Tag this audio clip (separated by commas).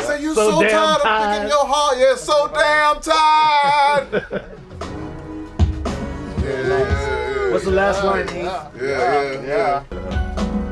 Speech, Music